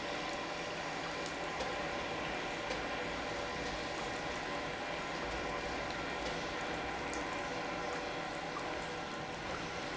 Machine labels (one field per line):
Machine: pump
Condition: normal